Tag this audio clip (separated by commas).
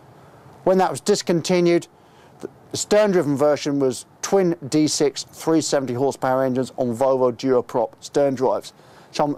Speech